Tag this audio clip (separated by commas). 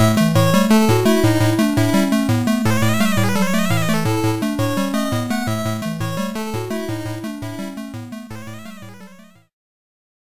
Video game music, Music